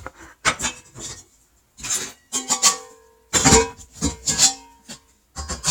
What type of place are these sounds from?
kitchen